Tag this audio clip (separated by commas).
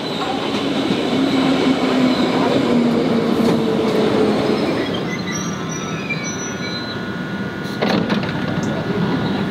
underground